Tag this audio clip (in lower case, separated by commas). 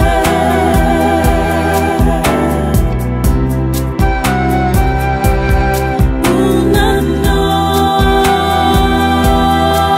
christian music, music